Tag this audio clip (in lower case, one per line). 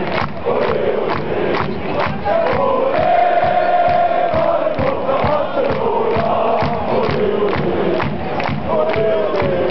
speech